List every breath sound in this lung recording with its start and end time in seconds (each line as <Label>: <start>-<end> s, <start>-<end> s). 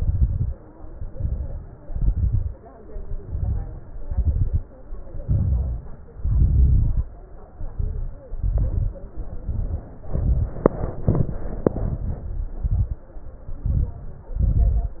Inhalation: 0.76-1.73 s, 2.94-3.91 s, 5.26-6.08 s, 7.60-8.36 s, 9.33-10.03 s, 11.06-11.74 s, 12.56-13.10 s, 14.35-15.00 s
Exhalation: 0.00-0.53 s, 1.84-2.56 s, 4.01-4.67 s, 6.16-7.10 s, 8.40-9.02 s, 10.07-10.64 s, 11.78-12.48 s, 13.64-14.31 s
Crackles: 0.00-0.53 s, 0.76-1.73 s, 1.84-2.56 s, 2.94-3.91 s, 4.01-4.67 s, 5.26-6.08 s, 6.16-7.10 s, 7.60-8.36 s, 8.40-9.02 s, 9.33-10.03 s, 10.07-10.64 s, 11.06-11.74 s, 11.78-12.48 s, 12.56-13.10 s, 13.64-14.31 s, 14.35-15.00 s